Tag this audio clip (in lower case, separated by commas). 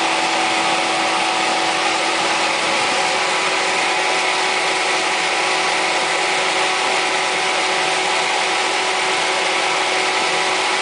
truck, outside, rural or natural, vehicle